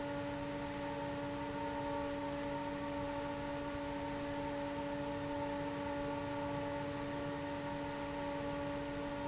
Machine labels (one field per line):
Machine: fan